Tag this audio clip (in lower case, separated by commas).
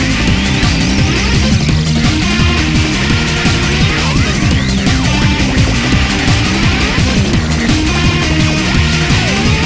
music